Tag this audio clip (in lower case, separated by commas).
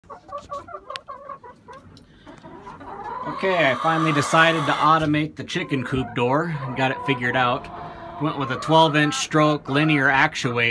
speech, chicken